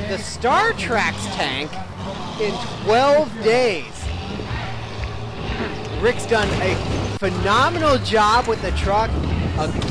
A man talking while truck revs in the background